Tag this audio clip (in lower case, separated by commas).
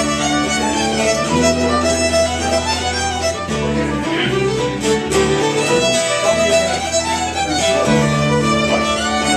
fiddle, music, musical instrument